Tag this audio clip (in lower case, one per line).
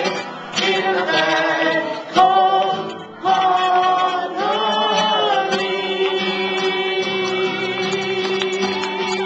music
male singing
singing
musical instrument